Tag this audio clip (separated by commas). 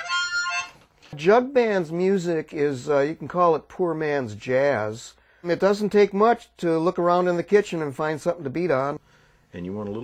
Speech